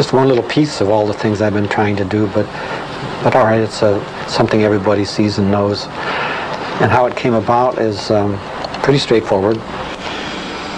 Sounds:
Speech

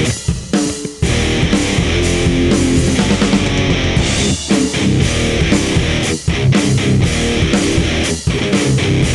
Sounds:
Music

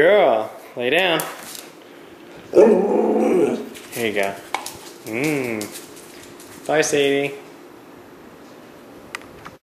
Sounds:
Speech, Dog, Growling, Domestic animals, Animal, canids

